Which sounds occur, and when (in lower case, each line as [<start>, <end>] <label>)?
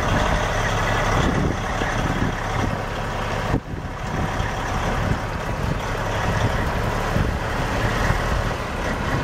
[0.00, 9.23] truck
[0.98, 3.02] wind noise (microphone)
[3.29, 7.39] wind noise (microphone)